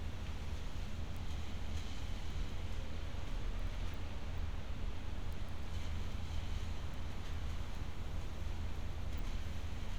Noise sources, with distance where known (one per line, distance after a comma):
background noise